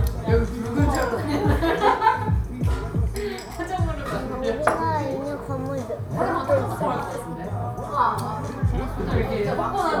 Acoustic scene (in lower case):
cafe